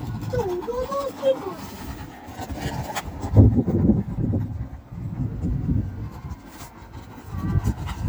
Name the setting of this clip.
park